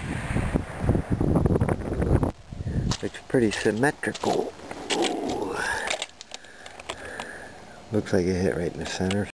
Wind blowing followed by adult man speaking